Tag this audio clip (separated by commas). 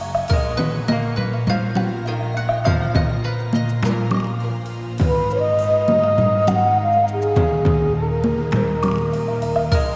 Music